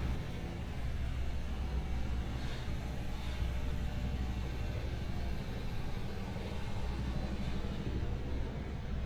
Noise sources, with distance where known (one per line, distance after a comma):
engine of unclear size